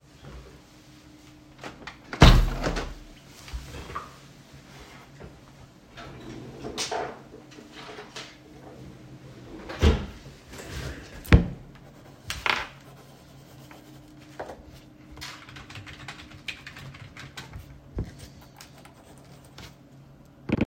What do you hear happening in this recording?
opened my window, searched for something in the drawer and then started typing on the keyboard